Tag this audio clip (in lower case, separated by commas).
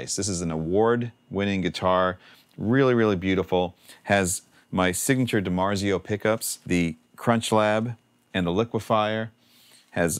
speech